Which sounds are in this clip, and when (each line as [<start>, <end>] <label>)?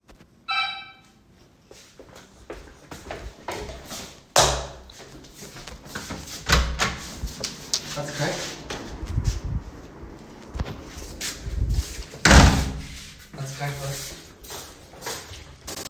[0.44, 1.00] bell ringing
[1.67, 9.48] footsteps
[4.33, 4.79] light switch
[6.47, 6.99] door
[10.54, 15.89] footsteps
[12.22, 12.79] door